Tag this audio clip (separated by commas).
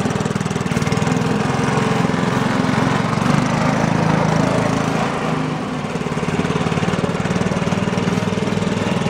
Vehicle, lawn mowing, Lawn mower